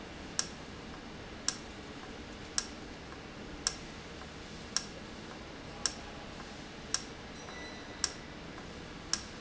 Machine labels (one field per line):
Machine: valve